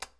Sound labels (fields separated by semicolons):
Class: switch; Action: being turned off; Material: plastic